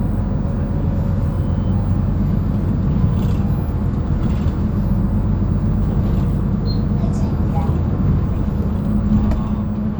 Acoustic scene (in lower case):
bus